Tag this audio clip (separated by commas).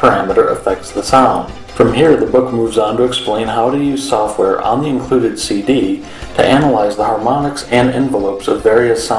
Music, Speech